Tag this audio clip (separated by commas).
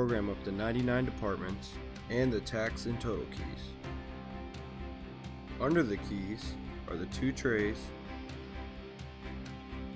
Speech, Music